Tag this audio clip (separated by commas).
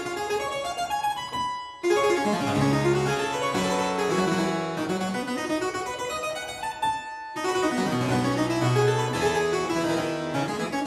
playing harpsichord